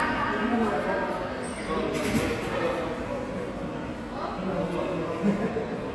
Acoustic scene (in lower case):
subway station